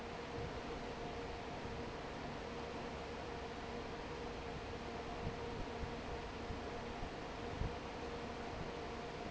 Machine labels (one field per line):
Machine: fan